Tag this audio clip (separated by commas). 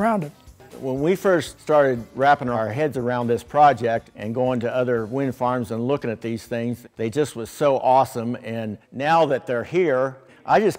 Music, Speech